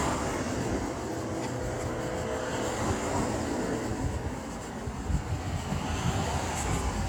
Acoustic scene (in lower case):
street